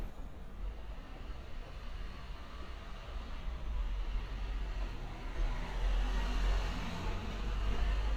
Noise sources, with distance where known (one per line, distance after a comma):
medium-sounding engine